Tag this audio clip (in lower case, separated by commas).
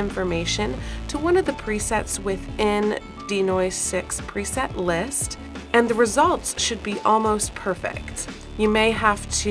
speech, music